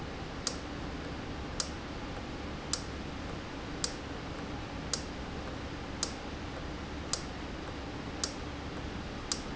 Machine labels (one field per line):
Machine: valve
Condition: normal